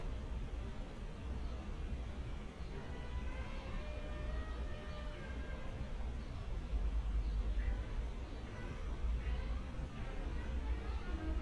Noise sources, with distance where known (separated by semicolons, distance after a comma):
music from a fixed source